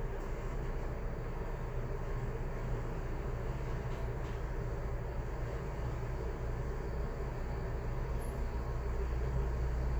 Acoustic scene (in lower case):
elevator